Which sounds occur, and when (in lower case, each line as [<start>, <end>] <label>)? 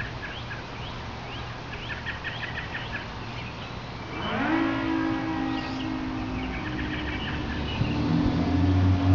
[0.00, 9.14] bird song
[0.00, 9.14] mechanisms
[4.11, 9.14] motor vehicle (road)
[4.13, 9.14] car horn